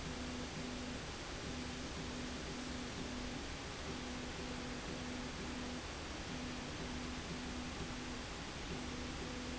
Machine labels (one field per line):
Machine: slide rail